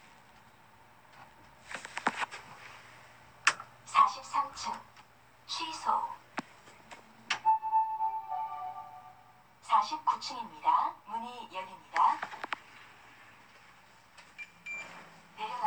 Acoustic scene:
elevator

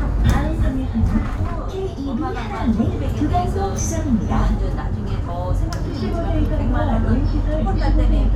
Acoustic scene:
bus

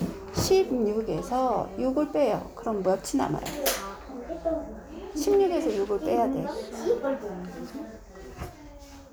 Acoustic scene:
crowded indoor space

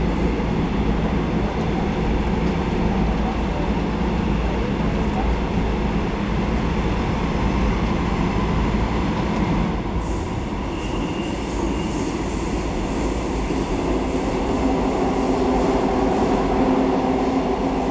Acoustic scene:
subway train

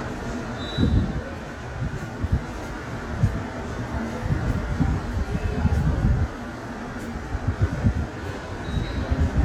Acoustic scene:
subway station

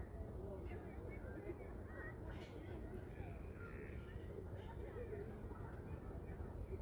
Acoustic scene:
residential area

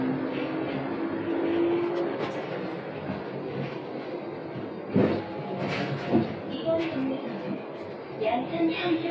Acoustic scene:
bus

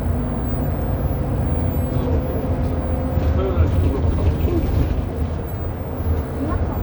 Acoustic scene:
bus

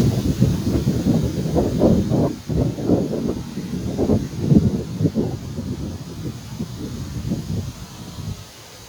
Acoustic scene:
park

